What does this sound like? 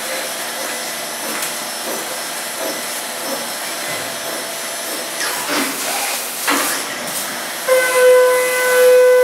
A monotonous tool is heard, then a loud horn sounds